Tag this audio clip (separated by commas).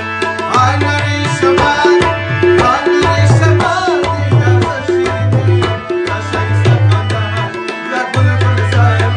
playing tabla